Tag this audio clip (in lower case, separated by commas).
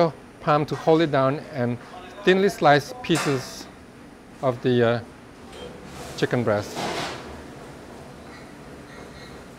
speech